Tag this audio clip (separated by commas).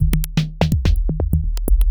Music, Percussion, Musical instrument, Drum kit